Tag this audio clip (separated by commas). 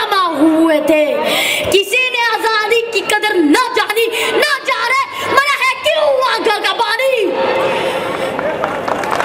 Male speech, Narration, Speech, Child speech